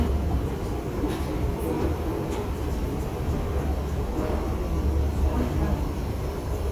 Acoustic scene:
subway station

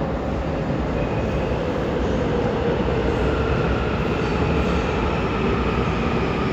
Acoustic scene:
subway station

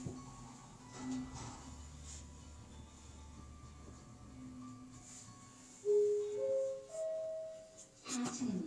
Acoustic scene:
elevator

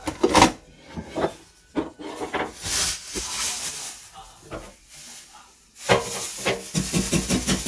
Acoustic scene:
kitchen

